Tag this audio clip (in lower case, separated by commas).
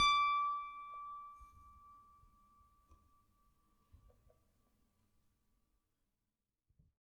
piano, musical instrument, music, keyboard (musical)